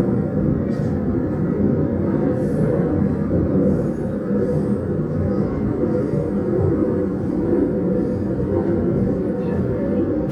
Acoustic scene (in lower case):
subway train